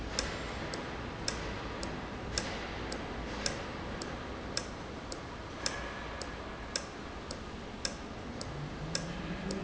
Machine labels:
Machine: valve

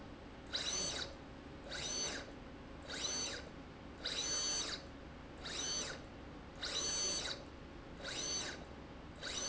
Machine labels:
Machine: slide rail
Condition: abnormal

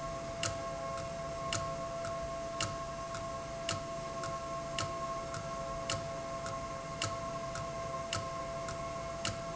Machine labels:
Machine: valve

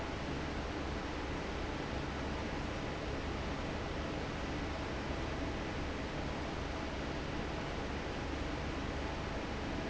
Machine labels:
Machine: fan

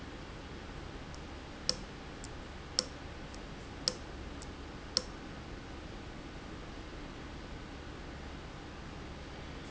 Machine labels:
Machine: valve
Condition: abnormal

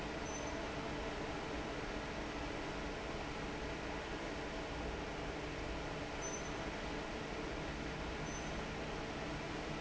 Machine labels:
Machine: fan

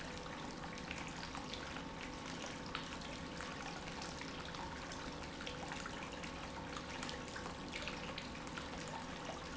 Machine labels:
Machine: pump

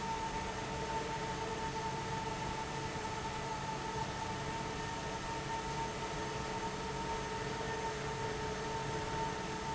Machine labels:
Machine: fan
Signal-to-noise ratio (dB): -6 dB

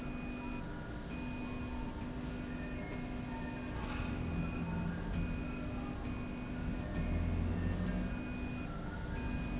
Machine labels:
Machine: slide rail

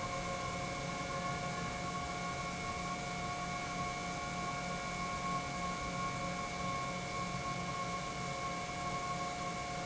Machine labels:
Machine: pump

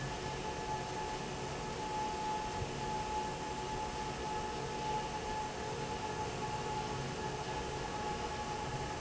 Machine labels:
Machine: fan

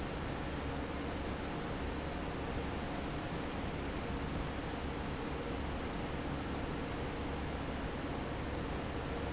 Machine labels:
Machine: fan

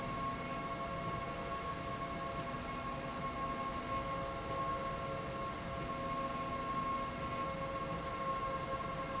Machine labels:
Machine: slide rail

